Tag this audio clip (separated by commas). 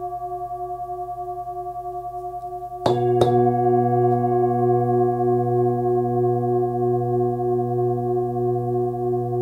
singing bowl